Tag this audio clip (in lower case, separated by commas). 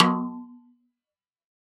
music, musical instrument, snare drum, percussion, drum